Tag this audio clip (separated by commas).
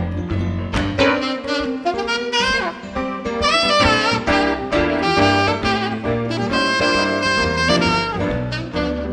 Music, Saxophone, Musical instrument